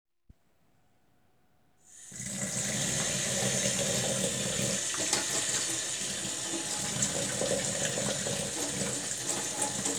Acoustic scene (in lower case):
kitchen